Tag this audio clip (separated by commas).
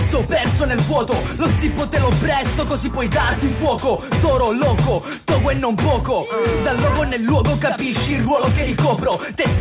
Music, Hip hop music, Rapping